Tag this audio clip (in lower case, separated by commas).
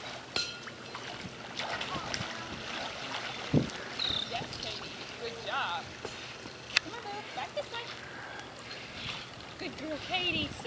stream, speech